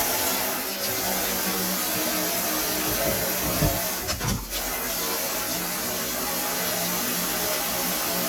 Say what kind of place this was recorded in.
kitchen